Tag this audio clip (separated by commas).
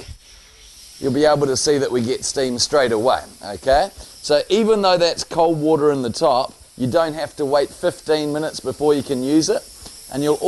Hiss